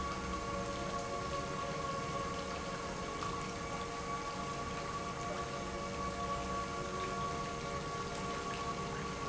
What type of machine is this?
pump